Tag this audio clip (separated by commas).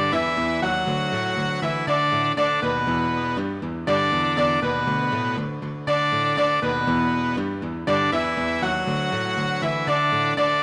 Cello, Soundtrack music, Music, Musical instrument, Background music